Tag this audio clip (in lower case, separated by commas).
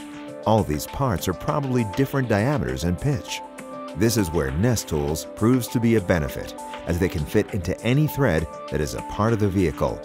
speech, music